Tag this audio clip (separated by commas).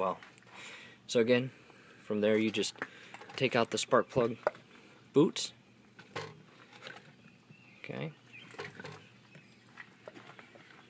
Speech